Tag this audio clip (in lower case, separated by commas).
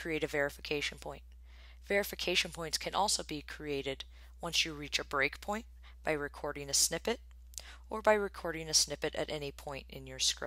speech